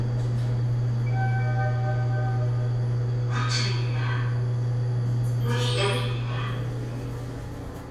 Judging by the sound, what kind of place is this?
elevator